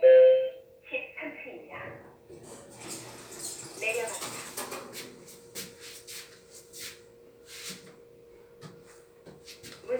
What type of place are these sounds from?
elevator